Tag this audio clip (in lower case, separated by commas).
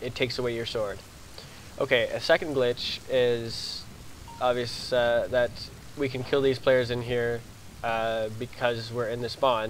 speech